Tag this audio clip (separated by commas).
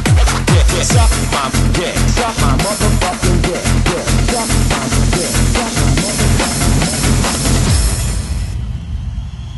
Music